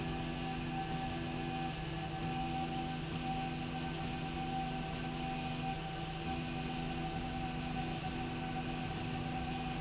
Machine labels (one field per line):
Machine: slide rail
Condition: normal